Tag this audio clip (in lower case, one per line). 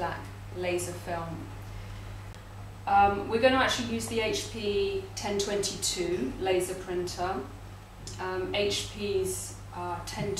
speech